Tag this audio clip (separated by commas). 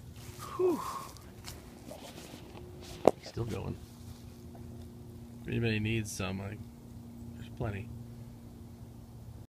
Speech